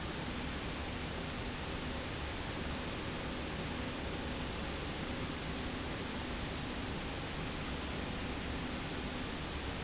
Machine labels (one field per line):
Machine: slide rail